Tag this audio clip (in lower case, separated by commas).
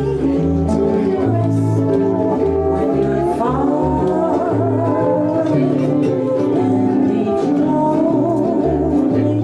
music